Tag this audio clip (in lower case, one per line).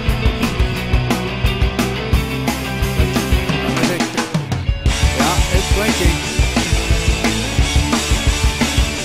music
speech